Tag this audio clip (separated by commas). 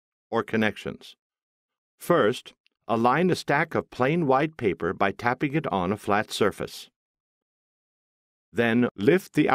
Speech